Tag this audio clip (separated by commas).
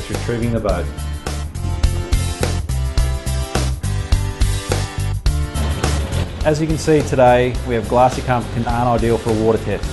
Speech, Music